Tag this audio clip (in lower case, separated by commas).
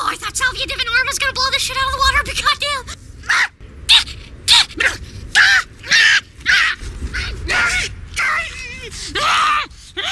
speech